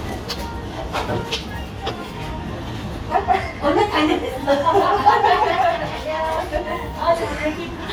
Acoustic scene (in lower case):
cafe